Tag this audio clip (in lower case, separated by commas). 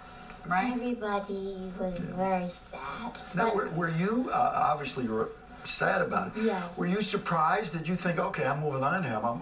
speech